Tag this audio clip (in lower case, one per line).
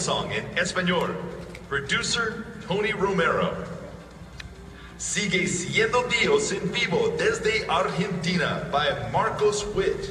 speech